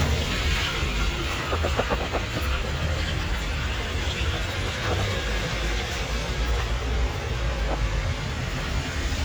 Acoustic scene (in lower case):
street